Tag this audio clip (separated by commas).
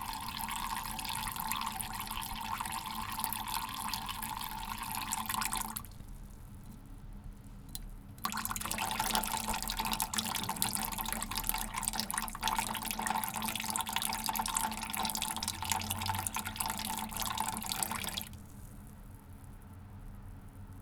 dribble, faucet, Liquid, Pour, Domestic sounds